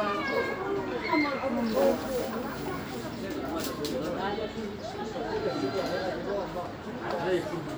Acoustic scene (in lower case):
park